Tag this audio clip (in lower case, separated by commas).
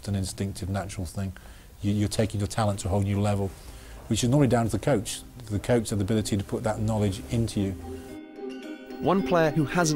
speech, music